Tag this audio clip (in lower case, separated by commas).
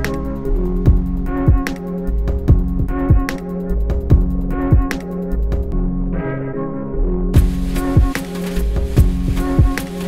music